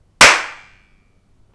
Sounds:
Hands, Clapping

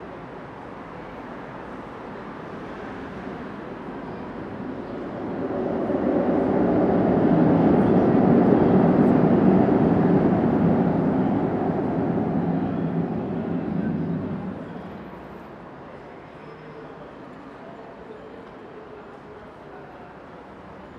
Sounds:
Rail transport, Chatter, roadway noise, Vehicle, Motor vehicle (road), Human group actions, Train

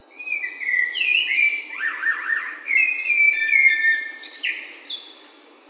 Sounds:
Wild animals, Bird, Animal

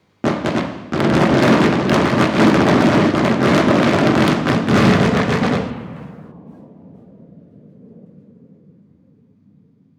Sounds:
Fireworks, Explosion, Gunshot

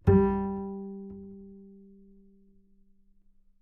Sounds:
Musical instrument, Music, Bowed string instrument

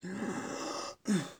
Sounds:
Respiratory sounds, Breathing

